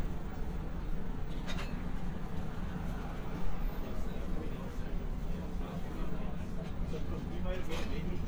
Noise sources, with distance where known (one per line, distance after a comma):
person or small group talking, near